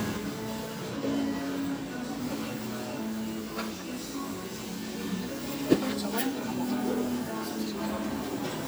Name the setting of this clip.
cafe